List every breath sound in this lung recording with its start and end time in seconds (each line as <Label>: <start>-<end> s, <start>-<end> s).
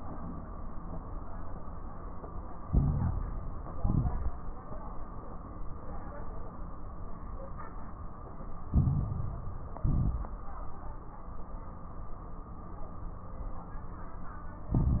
Inhalation: 2.66-3.68 s, 8.66-9.78 s, 14.71-15.00 s
Exhalation: 3.70-4.60 s, 9.80-10.92 s
Crackles: 2.66-3.68 s, 3.70-4.60 s, 8.66-9.78 s, 9.80-10.92 s, 14.71-15.00 s